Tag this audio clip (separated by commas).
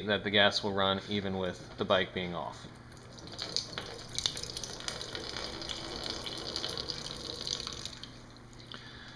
Water